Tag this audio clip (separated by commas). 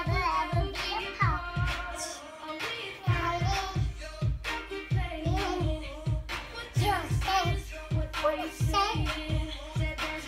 child singing